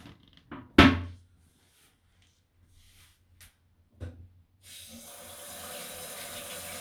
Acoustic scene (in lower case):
restroom